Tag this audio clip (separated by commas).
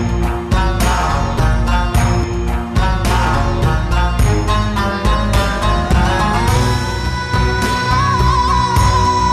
Folk music, Music